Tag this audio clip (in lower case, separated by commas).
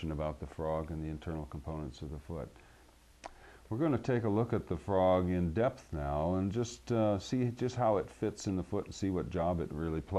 speech